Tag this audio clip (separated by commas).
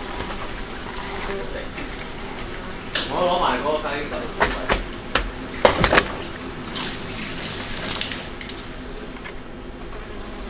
inside a large room or hall, Speech, dishes, pots and pans